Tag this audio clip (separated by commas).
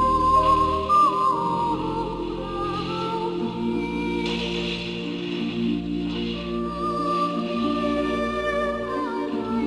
Music